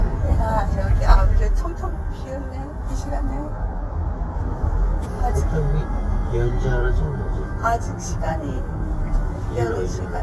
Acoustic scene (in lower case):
car